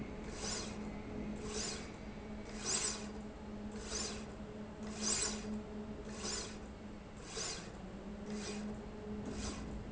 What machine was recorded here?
slide rail